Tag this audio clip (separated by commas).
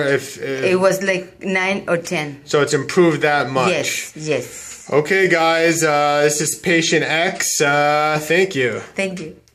Speech, inside a small room